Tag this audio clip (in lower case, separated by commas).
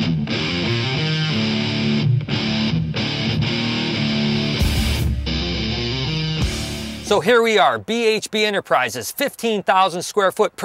heavy metal, speech, music